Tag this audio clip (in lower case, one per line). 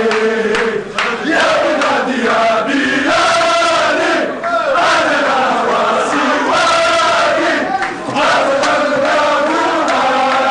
mantra